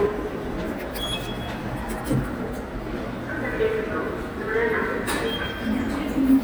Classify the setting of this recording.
subway station